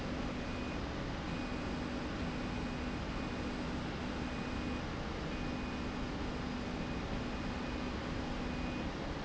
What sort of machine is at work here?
slide rail